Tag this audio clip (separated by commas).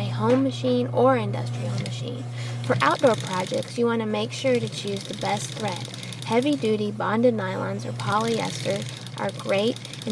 Speech